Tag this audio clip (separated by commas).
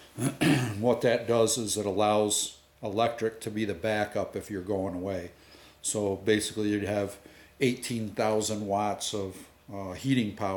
Speech